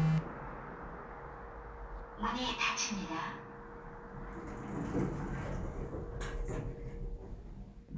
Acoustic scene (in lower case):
elevator